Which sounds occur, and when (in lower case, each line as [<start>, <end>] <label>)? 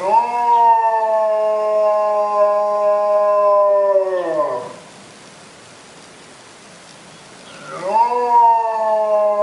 [0.00, 4.79] howl
[0.00, 9.42] background noise
[6.86, 6.98] tick
[7.09, 7.25] bird vocalization
[7.46, 7.68] bird vocalization
[7.72, 9.42] howl